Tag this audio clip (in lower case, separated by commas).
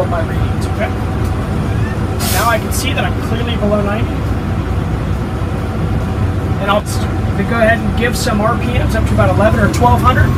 speech